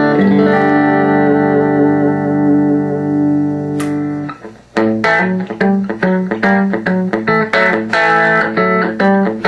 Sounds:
music, guitar, plucked string instrument, electronic tuner, musical instrument

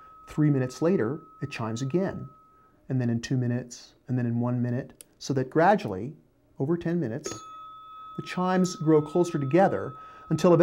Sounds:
speech

